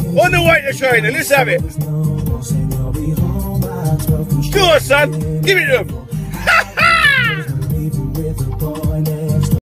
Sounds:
Music, Speech

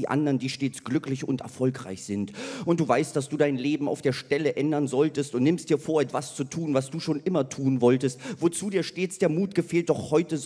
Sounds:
Speech

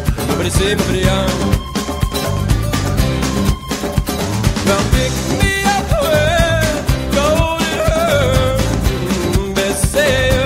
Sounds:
Disco

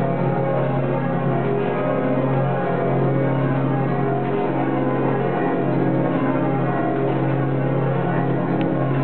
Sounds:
Change ringing (campanology)

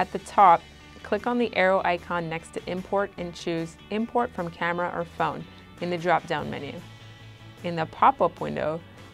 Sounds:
Speech, Music

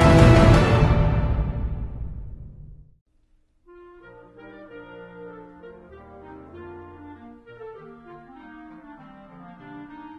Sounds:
Brass instrument

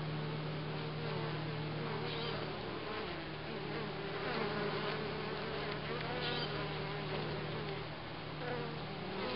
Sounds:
bee or wasp, Fly, bee, Insect

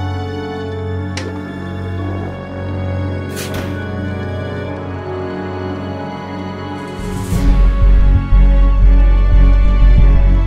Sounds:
Organ

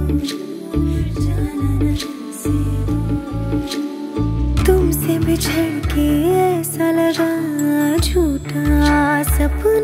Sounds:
Music

